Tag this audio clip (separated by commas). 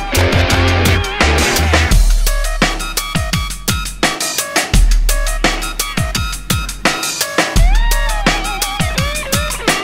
Drum and bass